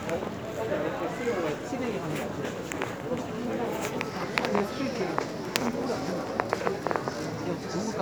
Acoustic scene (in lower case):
crowded indoor space